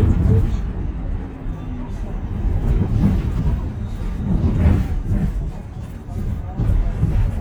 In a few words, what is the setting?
bus